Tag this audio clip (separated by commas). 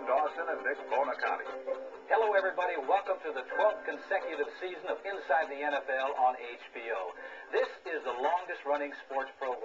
Speech